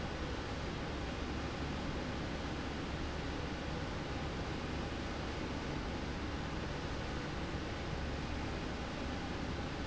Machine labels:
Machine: slide rail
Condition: normal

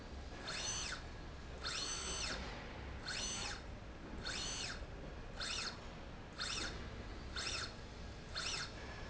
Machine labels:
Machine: slide rail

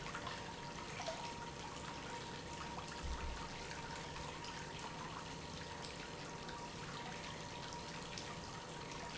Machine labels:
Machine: pump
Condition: normal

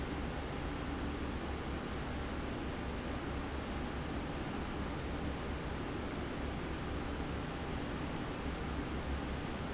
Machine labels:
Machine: fan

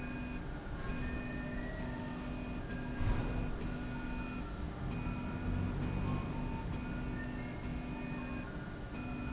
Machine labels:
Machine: slide rail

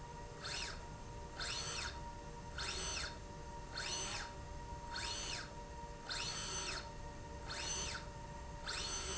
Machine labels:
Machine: slide rail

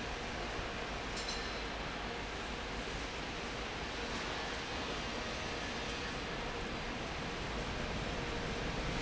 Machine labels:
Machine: fan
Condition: normal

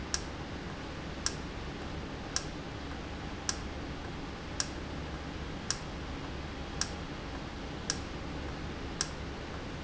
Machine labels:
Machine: valve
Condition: normal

